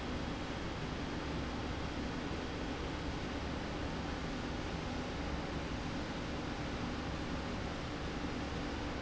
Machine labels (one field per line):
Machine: slide rail